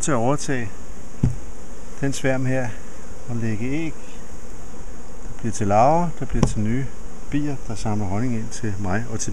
An adult male speaks and soft thumping occurs, while multiple insects are buzzing in the background